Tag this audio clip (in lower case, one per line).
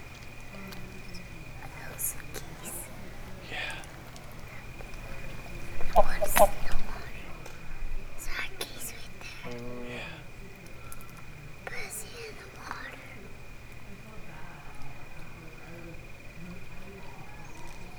livestock
animal
fowl